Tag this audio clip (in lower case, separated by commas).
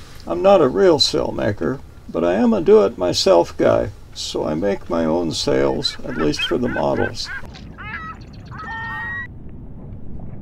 speech